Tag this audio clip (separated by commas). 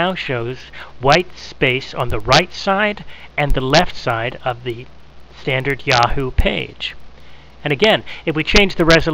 Speech